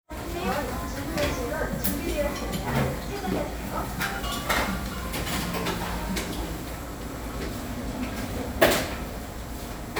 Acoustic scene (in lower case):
cafe